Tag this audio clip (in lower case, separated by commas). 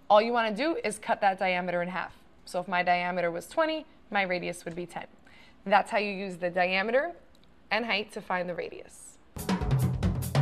music, speech